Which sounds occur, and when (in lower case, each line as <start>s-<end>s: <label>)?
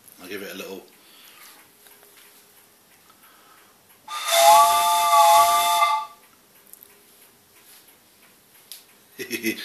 0.0s-9.6s: background noise
0.1s-0.9s: man speaking
0.9s-1.0s: tick
0.9s-1.7s: breathing
1.2s-1.3s: tick
1.4s-1.6s: tick
1.8s-2.0s: tick
2.1s-2.3s: tick
2.5s-2.6s: tick
2.8s-3.1s: tick
3.1s-3.7s: breathing
3.2s-3.3s: tick
3.5s-3.7s: tick
3.8s-4.0s: tick
4.1s-6.2s: honking
6.2s-6.3s: tick
6.5s-6.7s: tick
6.8s-7.0s: tick
7.2s-7.3s: tick
7.5s-7.7s: tick
7.9s-8.0s: tick
8.2s-8.3s: tick
8.5s-8.6s: tick
8.9s-9.1s: tick
9.1s-9.6s: giggle